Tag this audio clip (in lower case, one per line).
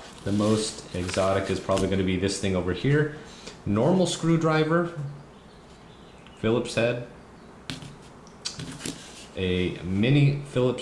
speech